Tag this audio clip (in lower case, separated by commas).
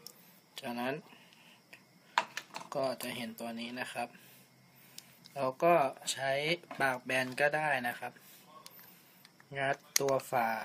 speech